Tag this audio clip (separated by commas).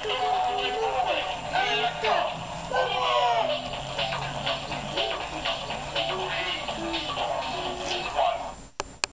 Speech, Music